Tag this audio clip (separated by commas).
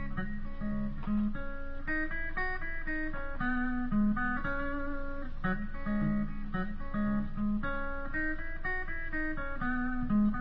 Music, Musical instrument, Guitar